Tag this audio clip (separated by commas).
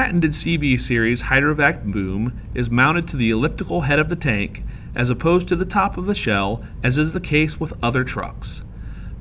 Speech